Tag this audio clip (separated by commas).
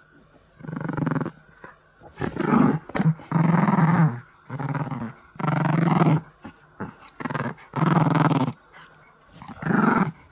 lions growling